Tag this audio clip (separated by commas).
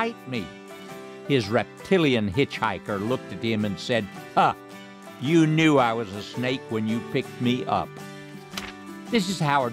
Speech, Music